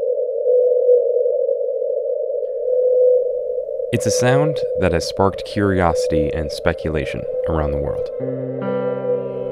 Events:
[0.00, 9.51] noise
[2.46, 2.62] generic impact sounds
[3.96, 7.26] man speaking
[7.52, 8.16] man speaking
[8.25, 9.51] music

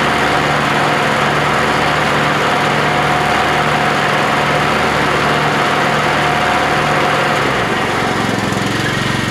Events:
[0.00, 9.30] lawn mower

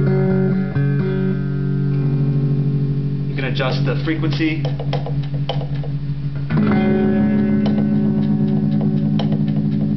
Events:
[0.00, 9.95] music
[3.43, 4.66] man speaking
[4.67, 5.14] generic impact sounds
[5.31, 5.99] generic impact sounds
[7.65, 7.97] generic impact sounds
[8.24, 9.90] generic impact sounds

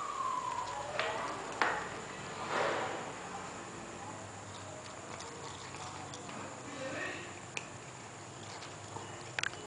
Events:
[0.00, 9.53] background noise
[0.01, 9.53] cat

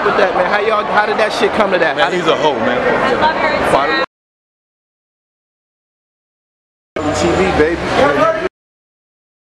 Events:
[0.00, 4.04] background noise
[0.03, 2.51] man speaking
[2.89, 3.99] woman speaking
[6.92, 8.45] background noise
[6.95, 7.63] man speaking
[7.96, 8.48] man speaking

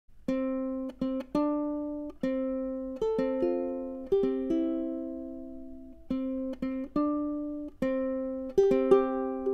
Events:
[0.05, 9.53] music

